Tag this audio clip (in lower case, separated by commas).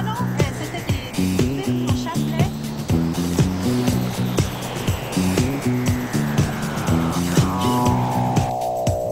music, vehicle, speech, motorboat